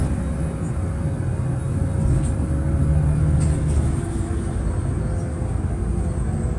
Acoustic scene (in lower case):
bus